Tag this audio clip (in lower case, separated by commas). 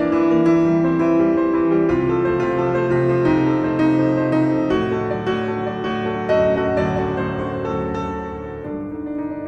music